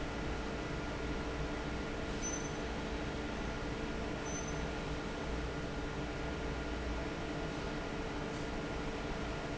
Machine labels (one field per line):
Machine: fan